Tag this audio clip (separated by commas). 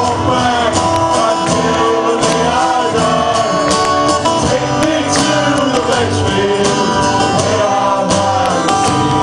Music, Male singing